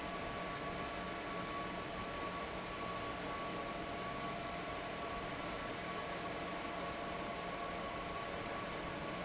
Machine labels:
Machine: fan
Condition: abnormal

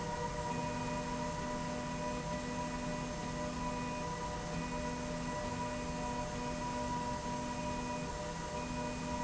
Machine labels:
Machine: slide rail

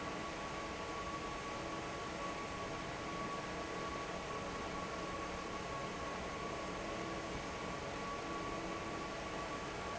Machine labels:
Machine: fan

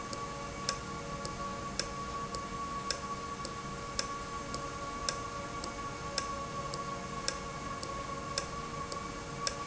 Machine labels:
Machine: valve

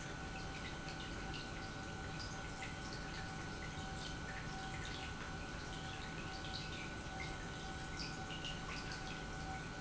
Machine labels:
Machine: pump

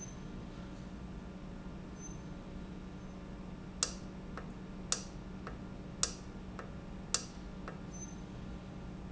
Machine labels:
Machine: valve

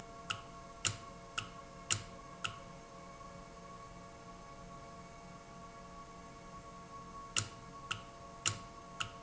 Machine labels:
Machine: valve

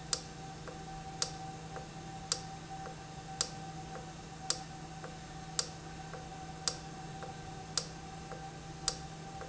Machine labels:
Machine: valve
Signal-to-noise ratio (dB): 0 dB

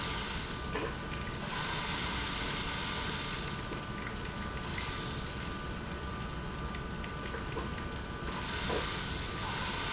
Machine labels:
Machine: pump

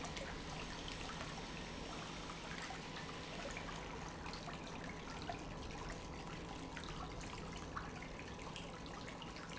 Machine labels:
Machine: pump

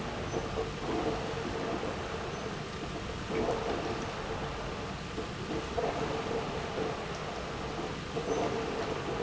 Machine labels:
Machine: pump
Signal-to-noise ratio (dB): -6 dB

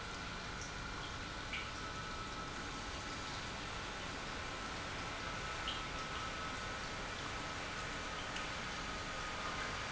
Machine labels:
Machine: pump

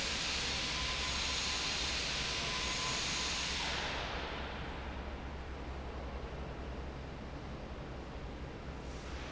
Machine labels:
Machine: fan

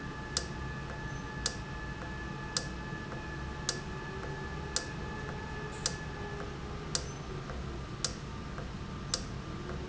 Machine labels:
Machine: valve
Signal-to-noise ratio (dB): -6 dB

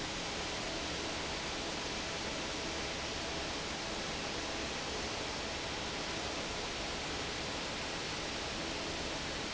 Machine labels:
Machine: fan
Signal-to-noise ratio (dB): -6 dB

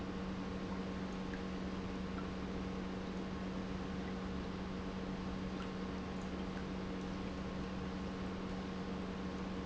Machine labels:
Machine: pump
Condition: normal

